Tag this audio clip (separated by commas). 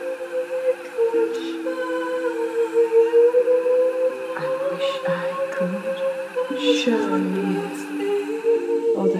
Speech, Music